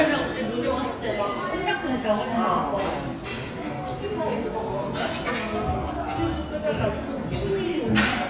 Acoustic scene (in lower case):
restaurant